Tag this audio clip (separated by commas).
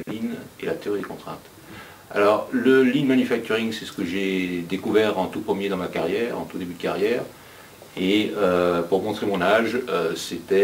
Speech